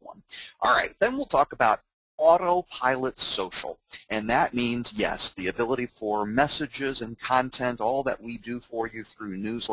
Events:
[0.00, 1.81] male speech
[2.15, 3.74] male speech
[3.84, 4.03] breathing
[4.07, 9.72] male speech

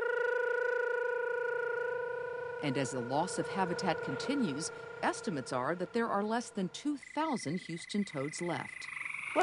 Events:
[0.00, 6.70] human sounds
[2.55, 4.65] female speech
[4.61, 4.93] breathing
[4.96, 8.64] female speech
[6.95, 8.94] cricket
[8.59, 9.42] frog
[9.27, 9.42] generic impact sounds

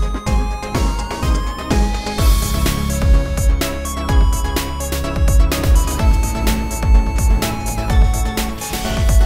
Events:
[0.00, 9.25] music

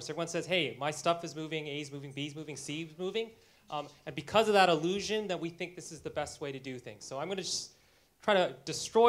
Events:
[0.01, 9.05] background noise
[0.12, 3.24] man speaking
[3.63, 3.79] man speaking
[4.12, 7.64] man speaking
[8.19, 9.05] man speaking

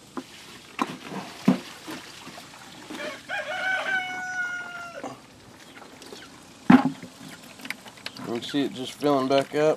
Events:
[0.00, 5.54] water
[0.00, 9.75] background noise
[0.09, 0.27] generic impact sounds
[0.75, 1.27] generic impact sounds
[1.41, 1.60] generic impact sounds
[1.82, 2.06] generic impact sounds
[2.87, 3.21] generic impact sounds
[2.96, 5.00] rooster
[4.96, 5.18] generic impact sounds
[5.37, 6.31] bird vocalization
[6.64, 6.91] generic impact sounds
[6.90, 9.75] bird vocalization
[7.26, 9.75] water
[8.15, 9.74] man speaking

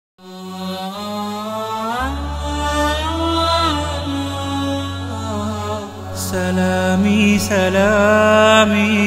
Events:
[0.09, 9.05] music
[0.09, 9.05] singing
[6.13, 9.05] male singing

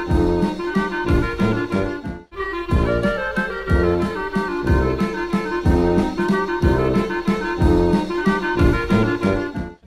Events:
[0.00, 9.85] music

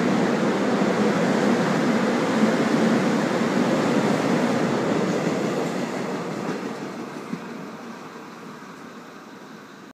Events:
[0.00, 9.89] subway
[0.00, 9.92] wind

